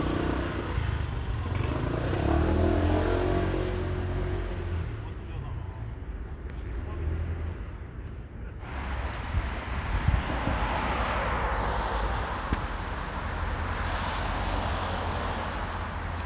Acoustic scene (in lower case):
street